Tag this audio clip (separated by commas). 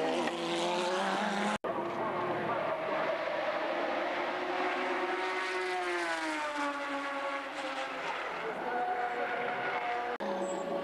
Speech